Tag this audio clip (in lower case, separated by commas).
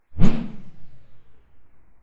swoosh